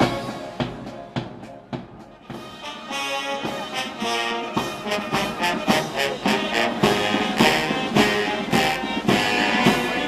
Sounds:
Music, Speech

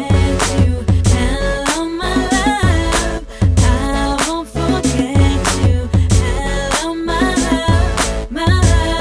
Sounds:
inside a large room or hall, Music

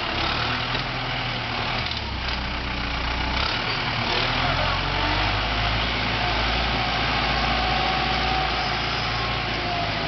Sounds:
tractor digging

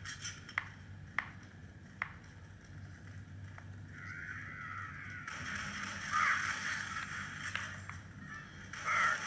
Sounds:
Speech, inside a small room

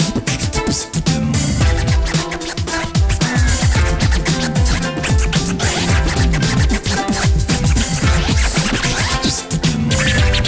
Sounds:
Music, Vocal music, Beatboxing

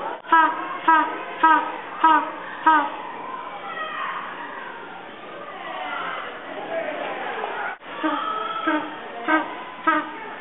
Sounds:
penguins braying

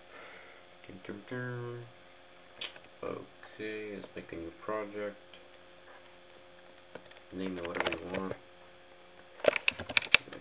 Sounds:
Speech

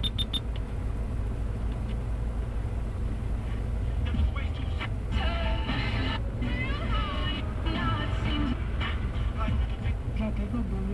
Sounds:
Vehicle, Music, Car

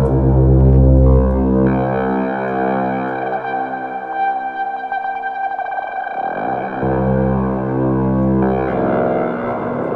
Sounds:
Musical instrument, Synthesizer, Music

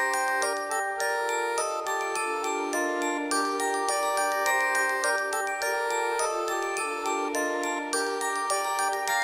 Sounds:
Music

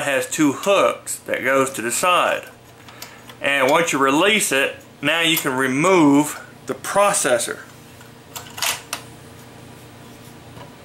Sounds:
Speech

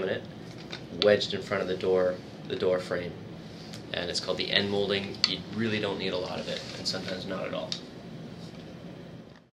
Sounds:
Speech

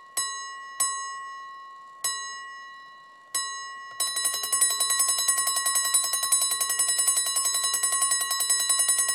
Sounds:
Alarm clock

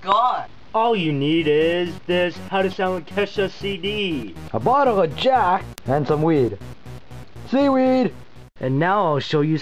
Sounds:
Music, Speech

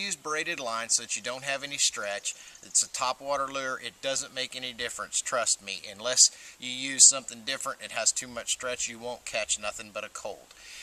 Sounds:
Speech

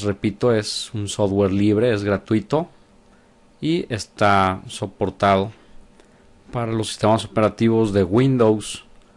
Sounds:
Speech

